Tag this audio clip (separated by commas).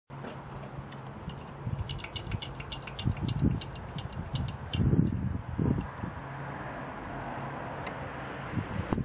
Tools